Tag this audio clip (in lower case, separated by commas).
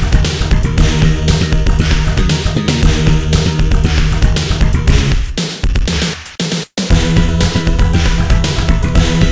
music, exciting music